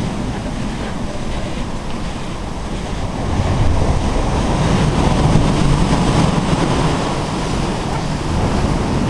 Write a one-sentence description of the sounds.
A sea shore is rolling